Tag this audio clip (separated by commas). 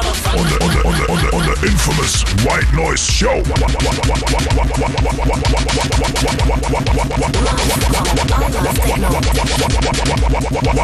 Speech, Dubstep, Music